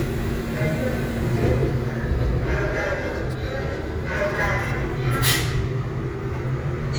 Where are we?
on a subway train